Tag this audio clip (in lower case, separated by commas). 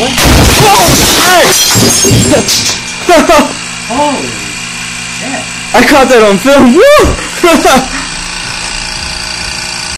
pop, explosion, speech